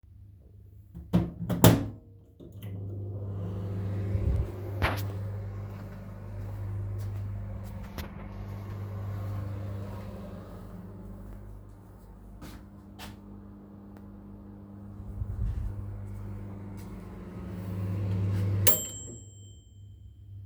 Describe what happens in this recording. I closed and turned the microwave on, then I walked away and again to the microwave, then it finished.